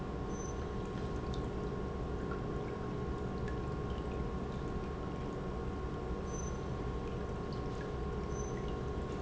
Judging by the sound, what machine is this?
pump